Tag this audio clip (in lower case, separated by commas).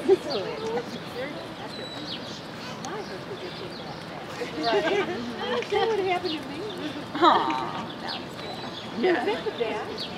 zebra braying